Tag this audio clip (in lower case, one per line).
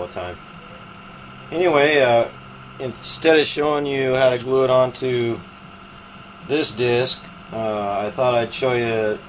speech